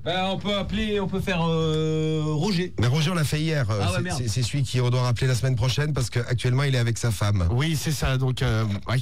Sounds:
Speech

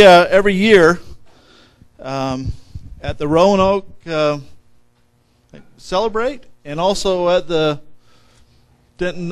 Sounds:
Speech

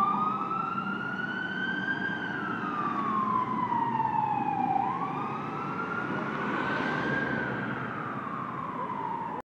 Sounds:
Car, Vehicle, Fire engine, Truck

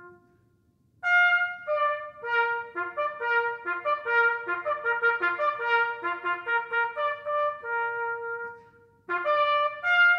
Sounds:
playing bugle

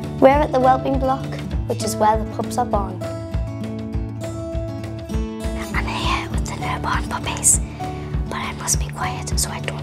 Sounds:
Music, Speech

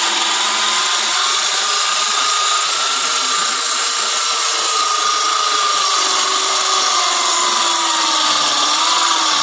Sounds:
Tools

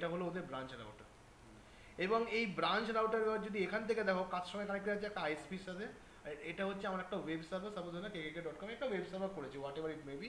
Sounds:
Speech

